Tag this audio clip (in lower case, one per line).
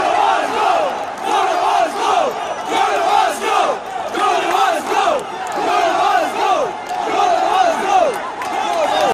speech